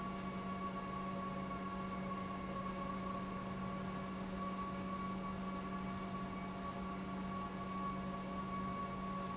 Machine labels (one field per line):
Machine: pump